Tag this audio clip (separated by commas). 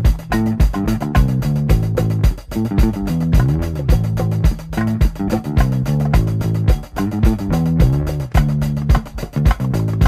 Music